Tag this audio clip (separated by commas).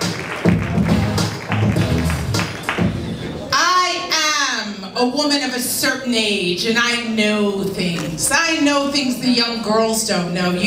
Speech, Music